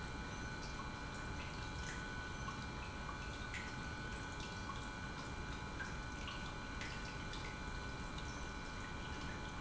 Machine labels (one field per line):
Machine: pump